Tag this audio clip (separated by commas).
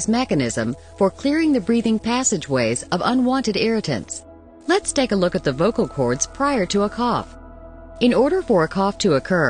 Speech, Music